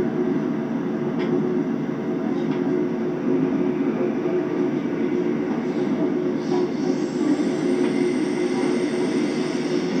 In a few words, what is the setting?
subway train